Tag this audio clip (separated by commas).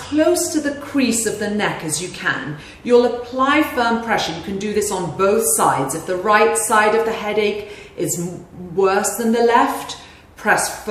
Speech